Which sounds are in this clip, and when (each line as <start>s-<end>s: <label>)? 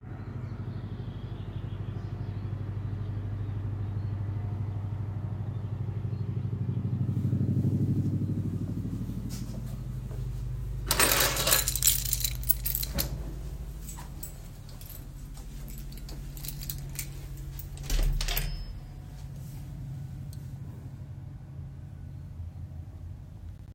7.0s-10.9s: footsteps
10.9s-13.1s: keys
13.1s-17.9s: footsteps
13.8s-17.9s: keys
17.8s-19.0s: door